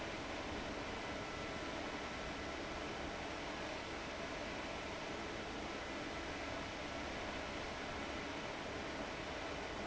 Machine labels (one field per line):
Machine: fan